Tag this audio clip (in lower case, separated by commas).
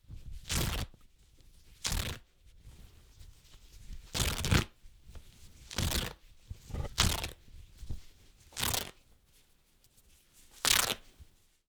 tearing